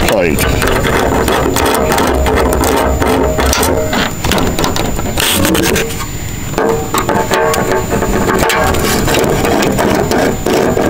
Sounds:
speech

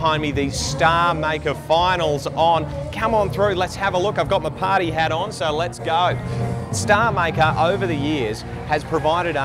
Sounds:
music, speech, country

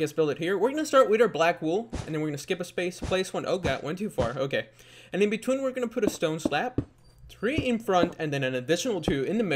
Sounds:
speech

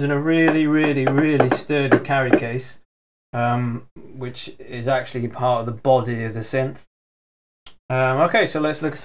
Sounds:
speech

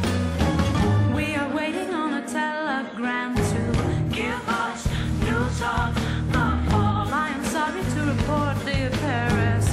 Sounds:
singing

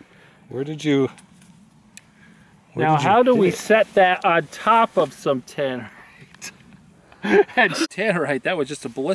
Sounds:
speech

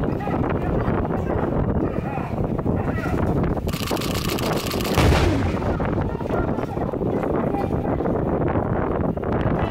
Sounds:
speech, artillery fire

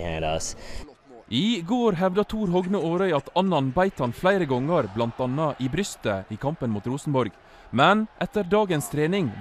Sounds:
speech

